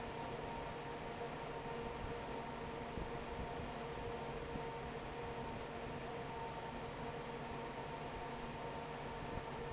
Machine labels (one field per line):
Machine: fan